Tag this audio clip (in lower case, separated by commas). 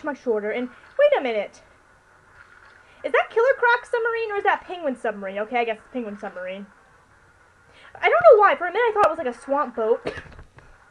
speech